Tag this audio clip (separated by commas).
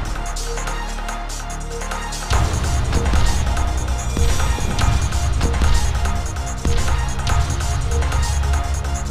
Music